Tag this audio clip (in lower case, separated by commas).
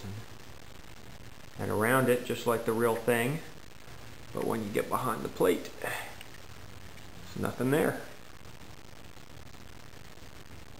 speech